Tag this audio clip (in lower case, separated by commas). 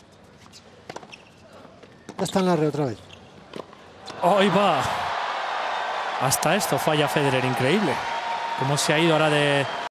speech